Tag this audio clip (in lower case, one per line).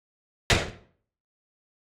gunfire
explosion